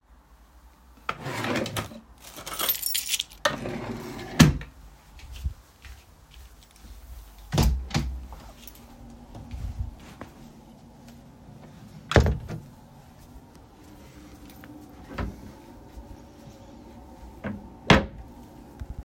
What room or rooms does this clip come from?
bedroom, living room